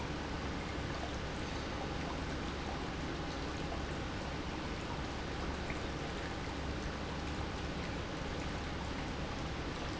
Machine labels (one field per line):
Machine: pump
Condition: normal